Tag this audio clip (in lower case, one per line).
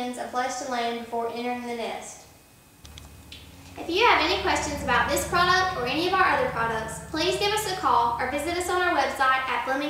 speech